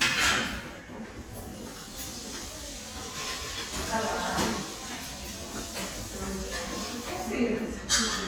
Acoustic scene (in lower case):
crowded indoor space